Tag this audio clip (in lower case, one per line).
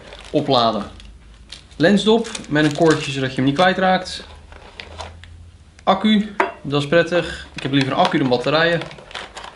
speech